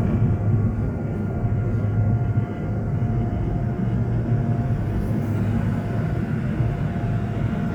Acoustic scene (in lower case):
subway train